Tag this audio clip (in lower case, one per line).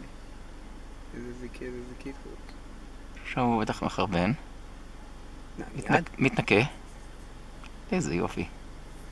speech
outside, rural or natural